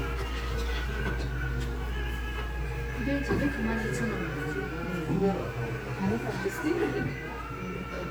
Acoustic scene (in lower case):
restaurant